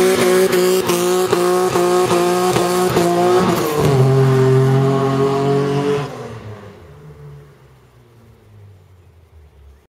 Vehicle driving by very fast